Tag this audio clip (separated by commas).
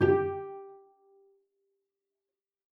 Bowed string instrument, Music, Musical instrument